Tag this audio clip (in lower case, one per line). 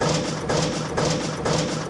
mechanisms